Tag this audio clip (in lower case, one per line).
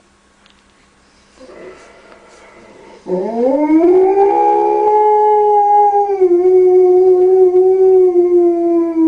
whimper (dog)
animal
dog
yip
howl
pets